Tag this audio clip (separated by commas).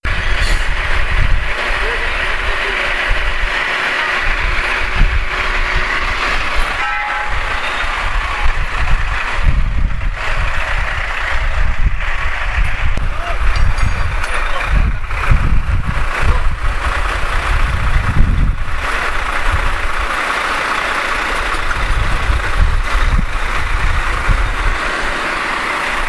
Truck, Motor vehicle (road), Vehicle